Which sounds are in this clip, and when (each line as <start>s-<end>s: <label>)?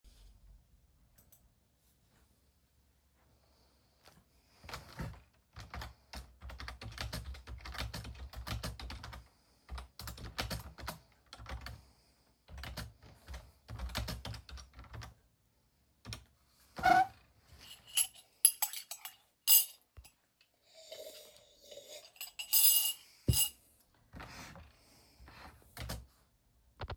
4.5s-16.4s: keyboard typing
17.6s-20.0s: cutlery and dishes
22.1s-23.7s: cutlery and dishes
25.7s-26.0s: keyboard typing
26.8s-27.0s: keyboard typing